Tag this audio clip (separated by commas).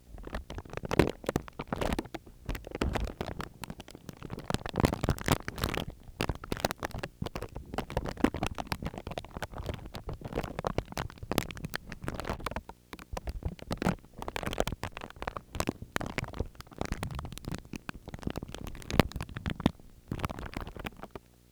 crinkling